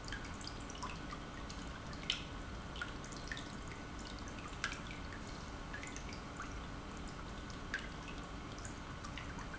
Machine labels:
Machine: pump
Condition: normal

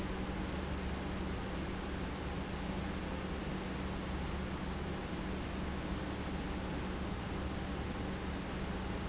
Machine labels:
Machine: pump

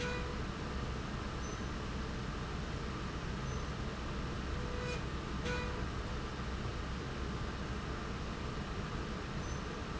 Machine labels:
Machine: slide rail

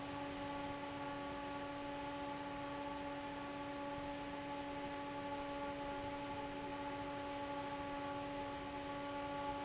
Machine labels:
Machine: fan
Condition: normal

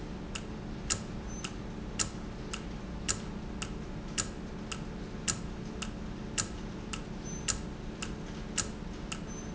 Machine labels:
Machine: valve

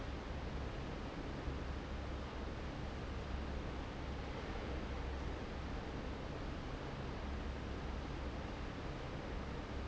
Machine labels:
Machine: fan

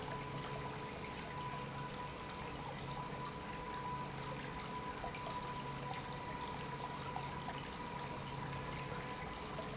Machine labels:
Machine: pump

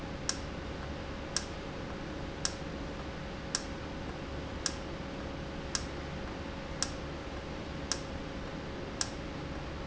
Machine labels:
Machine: valve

